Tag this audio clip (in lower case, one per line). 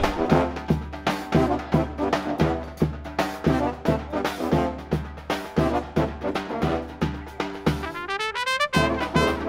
trumpet
music
speech
brass instrument
musical instrument
orchestra